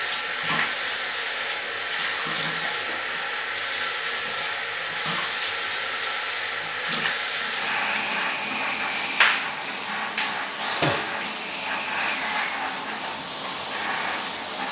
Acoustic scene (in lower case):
restroom